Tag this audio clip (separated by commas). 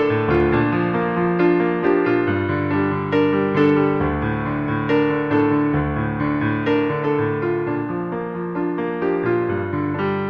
Electronic music, Music